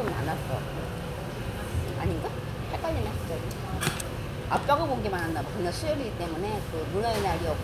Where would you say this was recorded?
in a restaurant